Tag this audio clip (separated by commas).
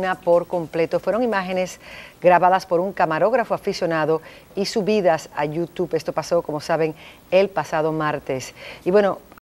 Speech